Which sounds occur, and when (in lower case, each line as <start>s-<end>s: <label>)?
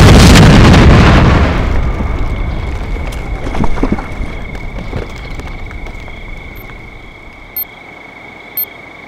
0.0s-1.7s: explosion
0.0s-9.0s: video game sound
1.2s-9.0s: cricket
1.7s-9.0s: rustle
7.5s-7.6s: bleep
8.5s-8.6s: bleep